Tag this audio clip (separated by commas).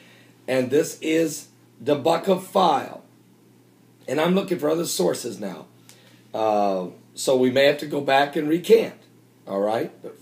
Speech